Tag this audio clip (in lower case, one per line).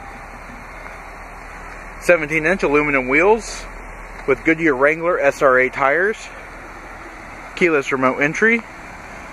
speech